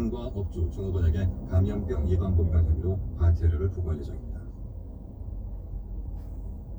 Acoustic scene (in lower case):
car